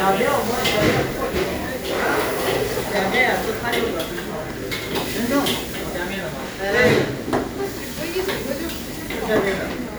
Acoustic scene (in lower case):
restaurant